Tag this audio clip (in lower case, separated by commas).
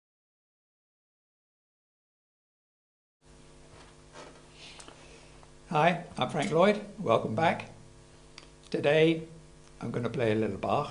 playing french horn